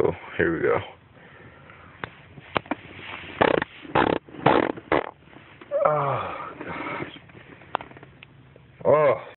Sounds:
Speech

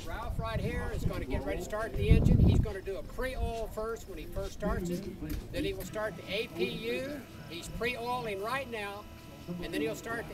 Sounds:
Speech

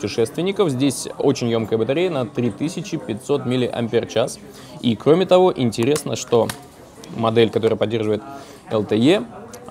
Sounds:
Speech

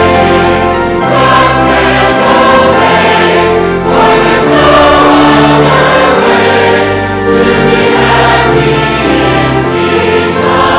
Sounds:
Choir, Female singing, Music

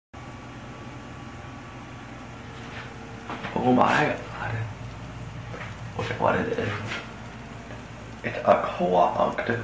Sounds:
Speech, inside a small room

